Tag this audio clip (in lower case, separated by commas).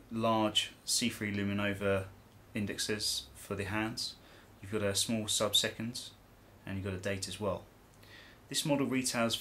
speech